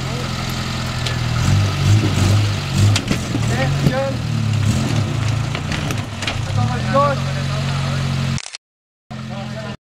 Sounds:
Speech

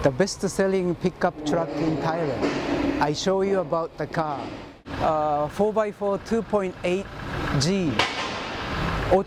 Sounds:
Vehicle, Speech

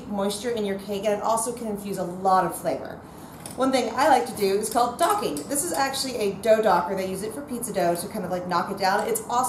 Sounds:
Speech

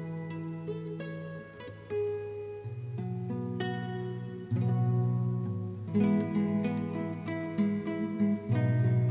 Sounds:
Plucked string instrument, Musical instrument, Bass guitar, Music, Guitar, Strum

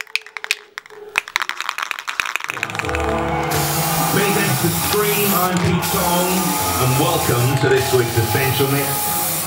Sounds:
Speech, Music, inside a small room

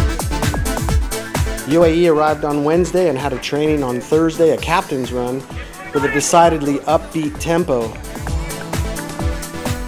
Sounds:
Speech, Music

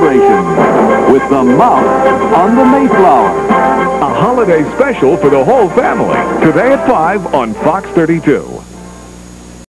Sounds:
Speech, Music

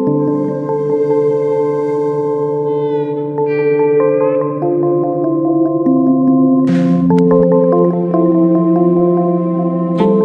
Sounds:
Ambient music, Electronic music, Trance music, Music

